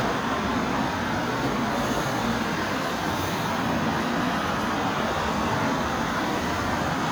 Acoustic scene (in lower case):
street